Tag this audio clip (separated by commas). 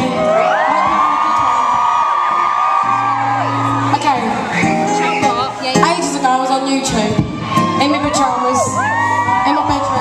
Speech, Music